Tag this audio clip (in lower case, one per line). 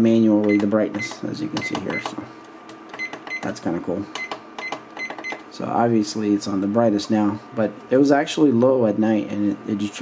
alarm clock ringing